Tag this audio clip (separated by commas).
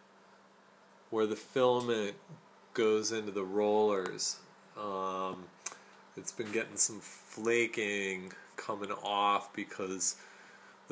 Speech